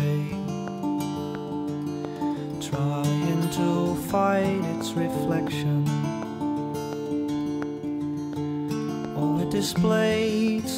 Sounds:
Music

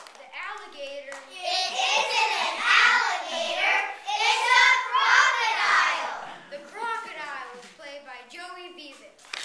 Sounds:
Hands, Speech

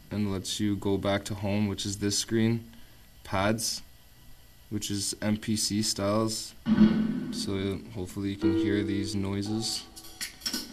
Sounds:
Speech, Music

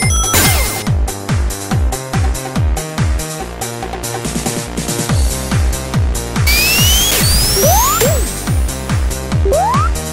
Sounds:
Soundtrack music, Music

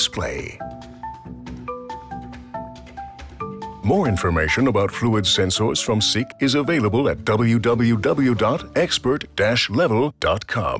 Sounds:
Speech, Marimba, Music

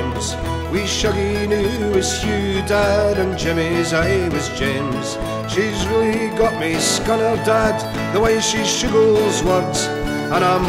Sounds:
Music

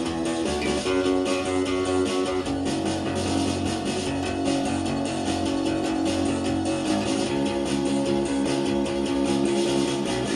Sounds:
Music, Electric guitar, Guitar, Musical instrument, Strum, Plucked string instrument

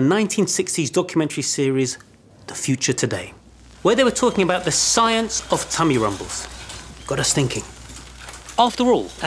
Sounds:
Speech

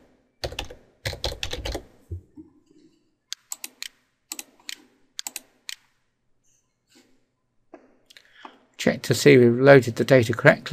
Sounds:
Speech

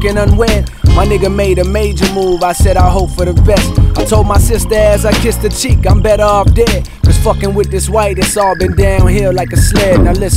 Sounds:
Hip hop music, Music

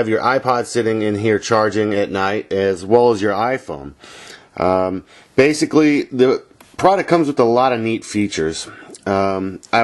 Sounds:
Speech

